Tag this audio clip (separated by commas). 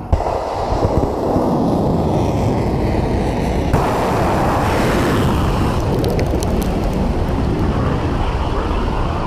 missile launch